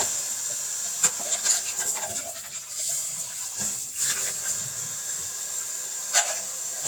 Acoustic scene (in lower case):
kitchen